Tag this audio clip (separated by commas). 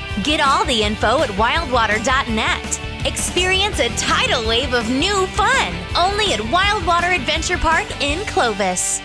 Speech, Music